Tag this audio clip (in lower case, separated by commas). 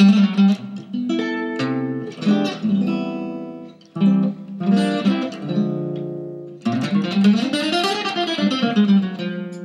electric guitar, musical instrument, strum, plucked string instrument, guitar, music